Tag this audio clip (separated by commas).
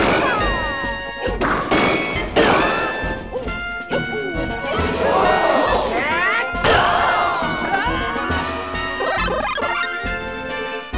Music, Speech